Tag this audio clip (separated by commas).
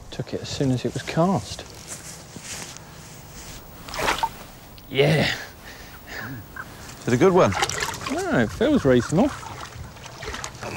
outside, rural or natural, Speech